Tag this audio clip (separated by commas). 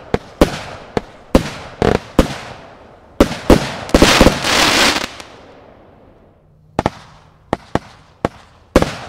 Fireworks, Firecracker